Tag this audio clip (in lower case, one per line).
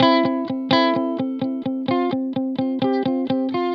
musical instrument
plucked string instrument
music
electric guitar
guitar